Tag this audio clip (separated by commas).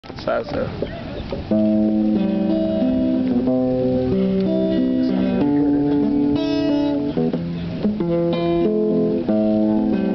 Bass guitar, Speech, Music